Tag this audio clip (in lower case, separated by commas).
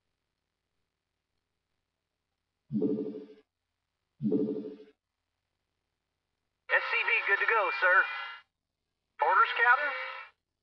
speech